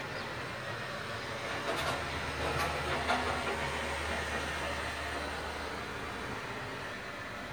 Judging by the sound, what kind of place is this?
residential area